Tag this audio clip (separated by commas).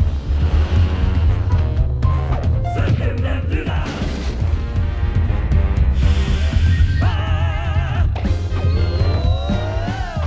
Music